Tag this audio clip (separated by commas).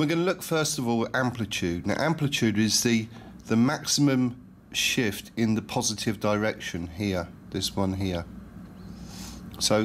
Speech